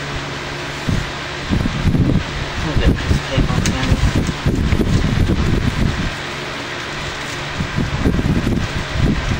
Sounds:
Mechanical fan, Speech

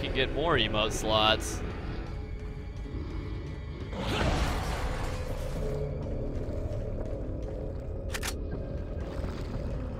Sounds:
Music, Speech

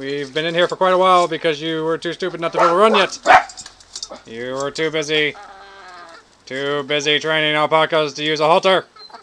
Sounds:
Speech, rooster

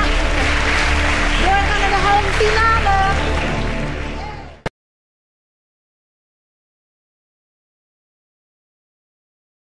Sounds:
Music, Speech

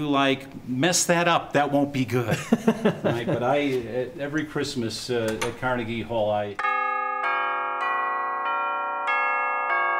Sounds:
Speech, inside a small room, Music, Musical instrument, Percussion

